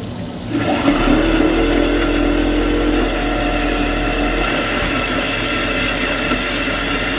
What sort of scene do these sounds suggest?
kitchen